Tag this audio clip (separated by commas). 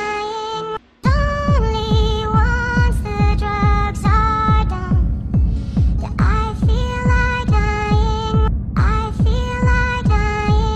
Dubstep, Music